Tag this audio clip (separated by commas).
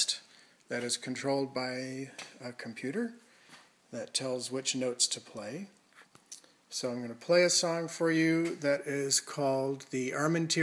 Speech